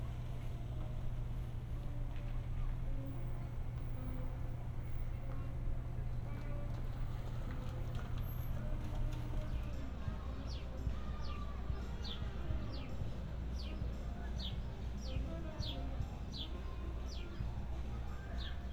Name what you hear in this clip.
music from an unclear source